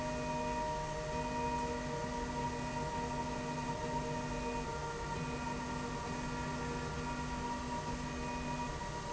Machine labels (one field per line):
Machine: slide rail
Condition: normal